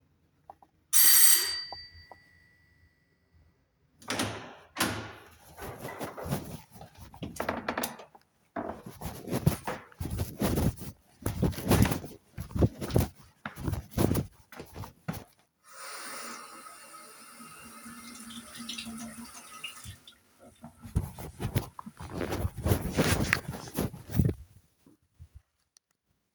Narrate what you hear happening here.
I rang the bell to my apartment. My flatmate opened the door. Then I went inside, walked to the kitchen, turned on the tap, washed my hands, and turned it back off.